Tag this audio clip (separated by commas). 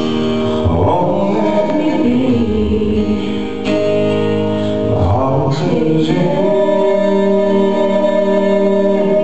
Male singing, Music, Female singing